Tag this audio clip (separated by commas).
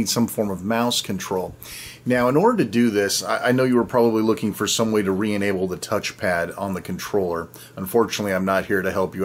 Speech